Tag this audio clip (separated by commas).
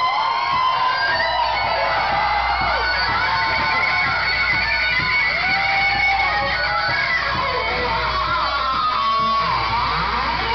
Guitar, Music, Electric guitar, Musical instrument, Plucked string instrument